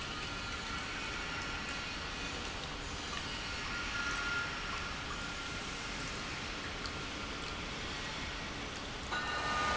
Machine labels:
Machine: pump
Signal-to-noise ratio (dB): -6 dB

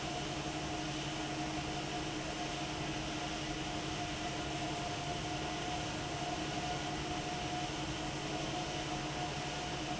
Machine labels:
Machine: fan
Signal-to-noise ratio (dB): -6 dB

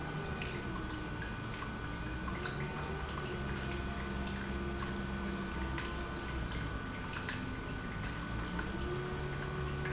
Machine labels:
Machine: pump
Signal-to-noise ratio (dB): -6 dB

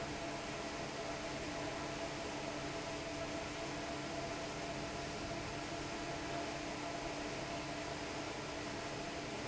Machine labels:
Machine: fan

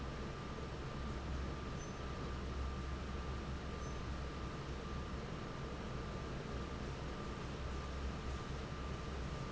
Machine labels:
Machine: fan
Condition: normal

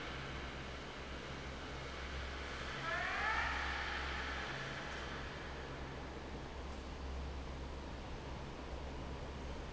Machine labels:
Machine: fan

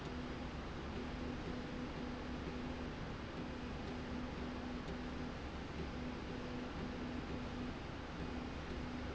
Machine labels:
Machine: slide rail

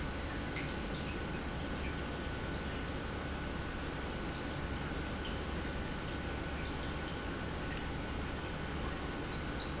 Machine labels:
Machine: pump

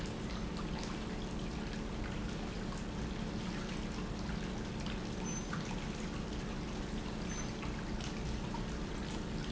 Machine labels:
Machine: pump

